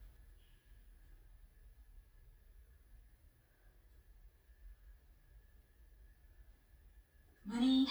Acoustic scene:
elevator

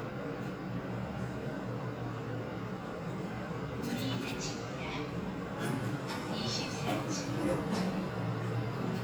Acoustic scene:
elevator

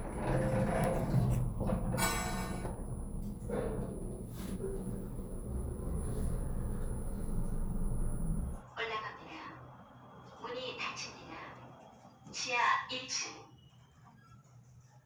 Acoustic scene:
elevator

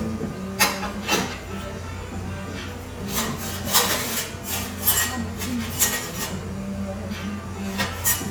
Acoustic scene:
cafe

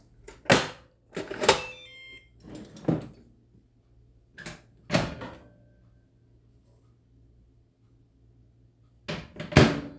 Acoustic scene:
kitchen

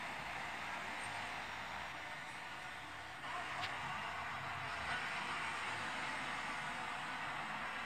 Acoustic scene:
street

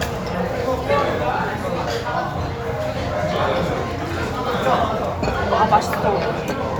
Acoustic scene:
restaurant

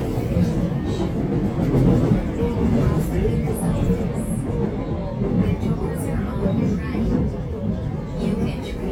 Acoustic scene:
subway train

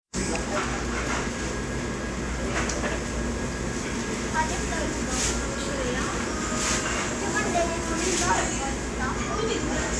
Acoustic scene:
restaurant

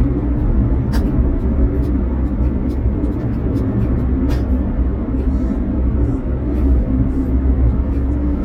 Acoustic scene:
car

